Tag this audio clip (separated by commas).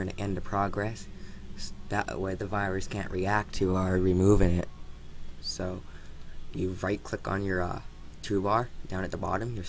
Speech